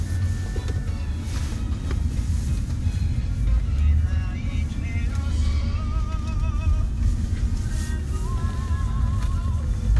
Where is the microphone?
in a car